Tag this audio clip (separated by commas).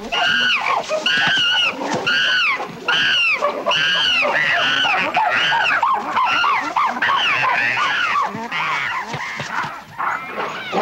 chimpanzee pant-hooting